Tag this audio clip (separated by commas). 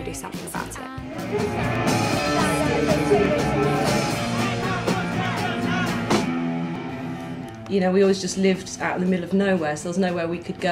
Speech, Music, Rock and roll, Dance music